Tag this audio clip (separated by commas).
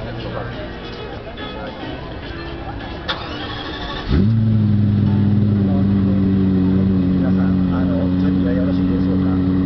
Speech